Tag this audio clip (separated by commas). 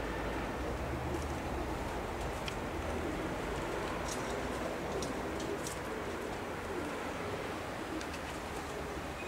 Bird